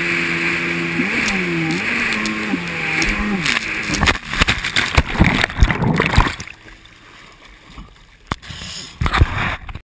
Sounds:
motorboat

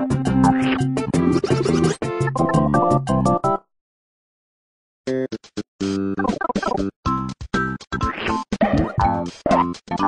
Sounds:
sound effect

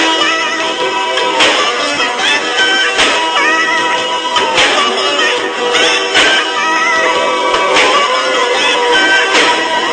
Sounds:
music

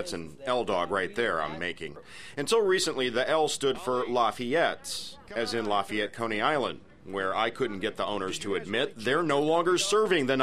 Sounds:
speech

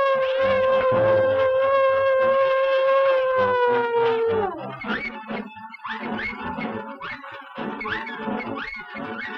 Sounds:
music

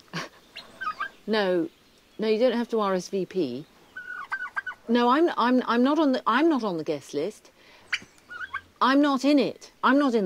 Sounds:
gobble
fowl
turkey

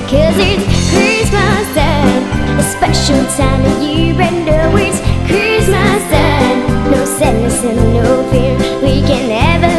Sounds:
music

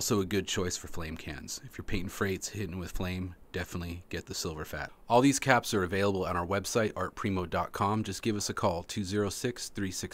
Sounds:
speech

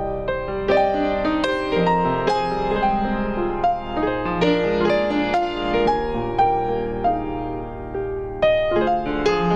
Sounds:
background music
happy music
music

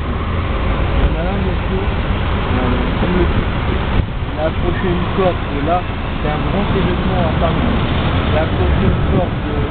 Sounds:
speech
vehicle
car
motor vehicle (road)

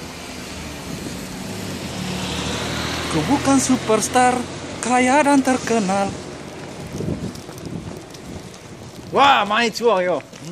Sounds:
roadway noise
speech

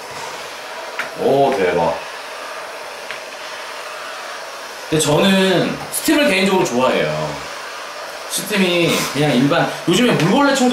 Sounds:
vacuum cleaner cleaning floors

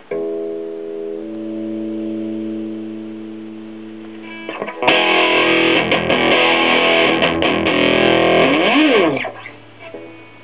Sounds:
music
musical instrument
electric guitar
plucked string instrument
guitar

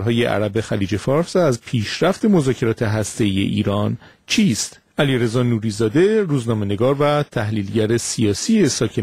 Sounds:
speech

